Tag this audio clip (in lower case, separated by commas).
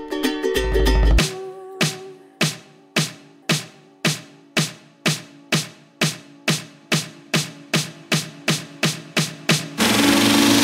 music